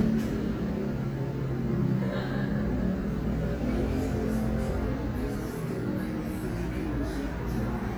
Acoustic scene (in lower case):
cafe